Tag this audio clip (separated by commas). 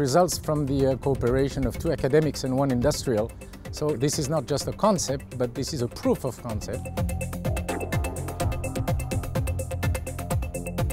Speech, Music